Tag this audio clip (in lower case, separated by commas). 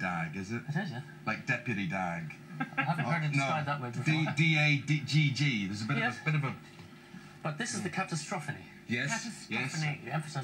speech